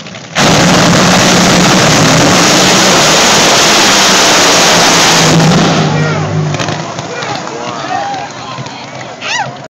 A loud engine revving, then the crowd claps and cheers